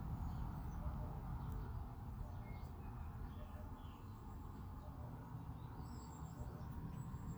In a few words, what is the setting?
park